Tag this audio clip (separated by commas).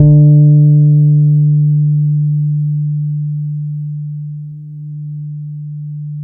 Bass guitar, Plucked string instrument, Guitar, Music, Musical instrument